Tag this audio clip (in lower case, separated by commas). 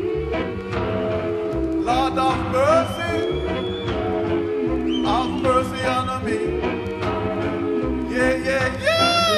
music